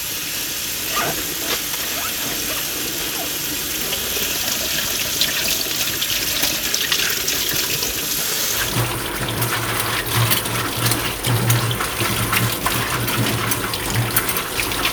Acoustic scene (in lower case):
kitchen